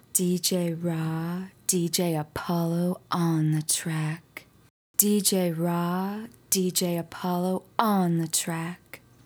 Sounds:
human voice
speech
woman speaking

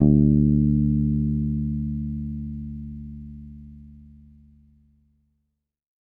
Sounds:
plucked string instrument
music
musical instrument
guitar
bass guitar

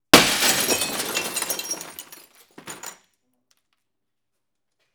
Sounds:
glass
shatter

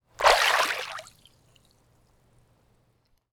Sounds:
liquid
splash
water

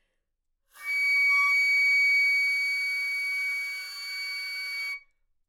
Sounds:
music
musical instrument
wind instrument

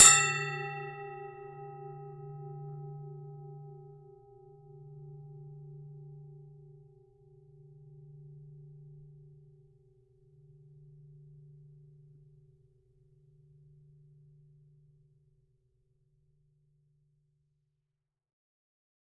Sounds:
bell

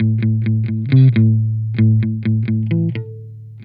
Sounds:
guitar
musical instrument
electric guitar
plucked string instrument
music

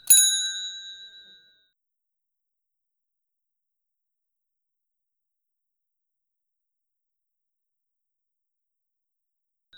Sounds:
vehicle
bicycle

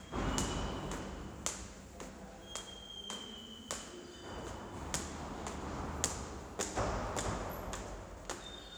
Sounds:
footsteps

